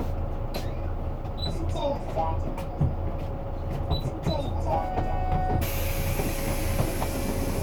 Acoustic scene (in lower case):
bus